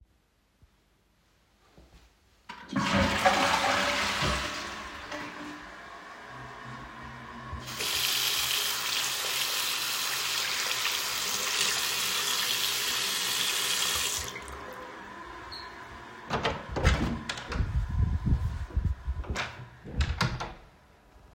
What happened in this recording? I flushed the toilet at the beginning of the scene. Then I turned on the water and let it run for a short time. Finally, I opened the door and closed it again.